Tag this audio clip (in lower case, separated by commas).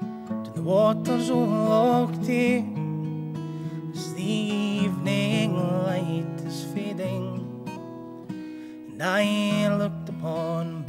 music